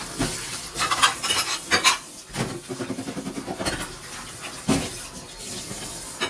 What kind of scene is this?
kitchen